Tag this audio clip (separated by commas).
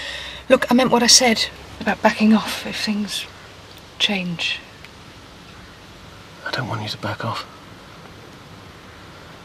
Stream, Speech